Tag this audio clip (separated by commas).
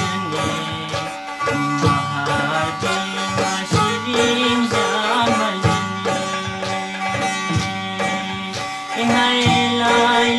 Music, Middle Eastern music